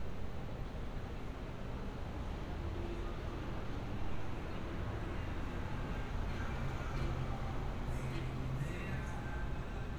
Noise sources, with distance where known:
music from an unclear source, far

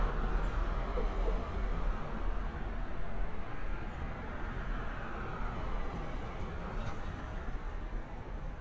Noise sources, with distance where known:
medium-sounding engine

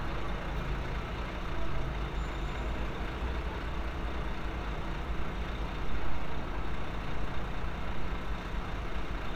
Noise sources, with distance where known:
large-sounding engine, near

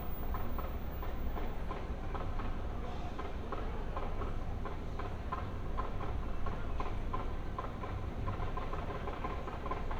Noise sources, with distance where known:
music from an unclear source

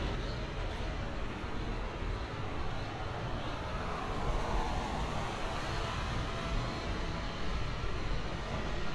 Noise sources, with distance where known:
medium-sounding engine, far

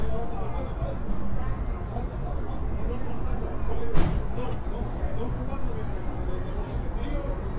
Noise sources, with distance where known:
person or small group talking, near

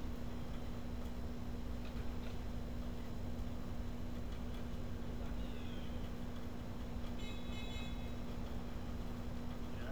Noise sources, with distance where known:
engine of unclear size

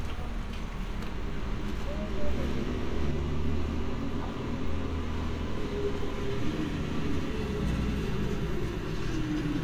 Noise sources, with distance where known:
large-sounding engine
person or small group talking, far

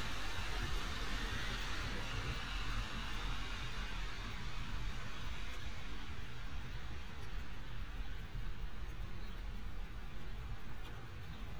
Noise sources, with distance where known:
background noise

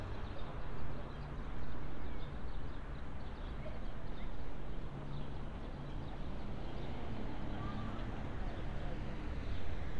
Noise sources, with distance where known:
background noise

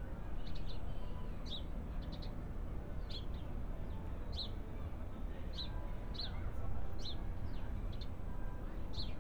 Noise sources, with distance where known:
music from an unclear source

